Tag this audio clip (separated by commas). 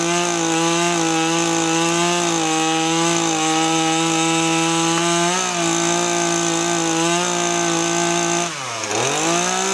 Chainsaw, chainsawing trees